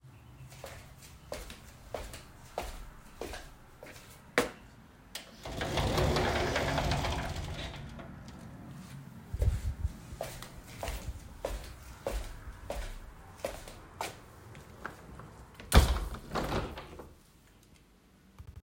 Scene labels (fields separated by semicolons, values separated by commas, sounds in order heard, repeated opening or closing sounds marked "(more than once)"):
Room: bedroom; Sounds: footsteps, wardrobe or drawer, window